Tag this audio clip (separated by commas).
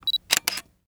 Camera, Mechanisms